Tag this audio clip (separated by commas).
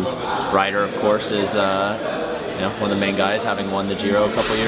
Speech